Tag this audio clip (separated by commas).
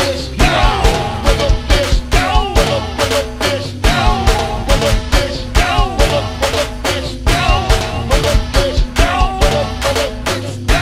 Music